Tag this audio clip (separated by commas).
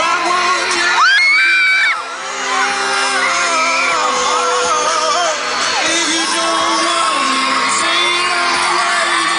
Singing